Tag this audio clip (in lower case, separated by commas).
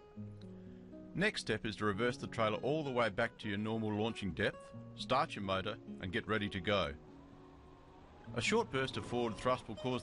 music, speech